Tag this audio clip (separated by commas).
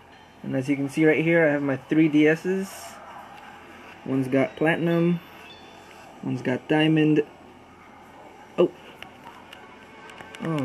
Music, Speech